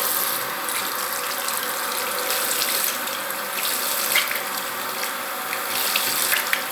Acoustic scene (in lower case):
restroom